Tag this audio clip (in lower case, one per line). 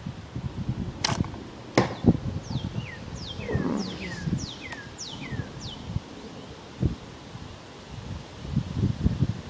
arrow